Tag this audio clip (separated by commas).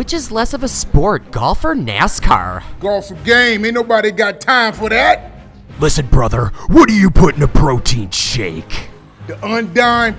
Music, Speech